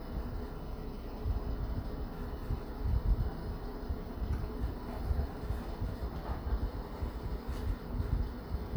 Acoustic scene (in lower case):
elevator